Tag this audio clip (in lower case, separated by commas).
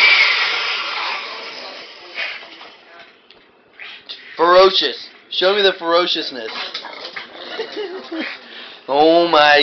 speech